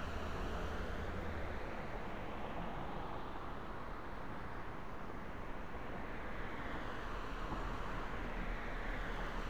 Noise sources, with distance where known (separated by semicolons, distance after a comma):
background noise